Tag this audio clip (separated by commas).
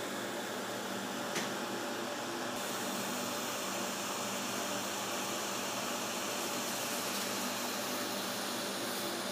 inside a small room